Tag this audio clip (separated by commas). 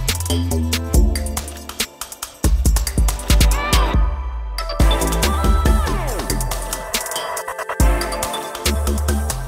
Music